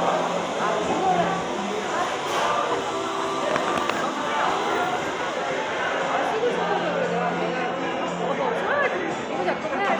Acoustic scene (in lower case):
cafe